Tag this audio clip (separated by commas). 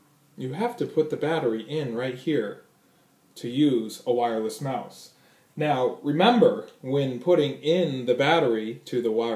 Speech